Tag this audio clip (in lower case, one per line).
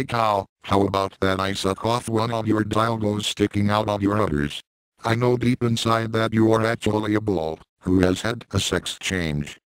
speech